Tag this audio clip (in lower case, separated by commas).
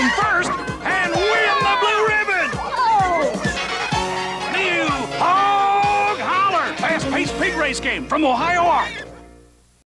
speech, music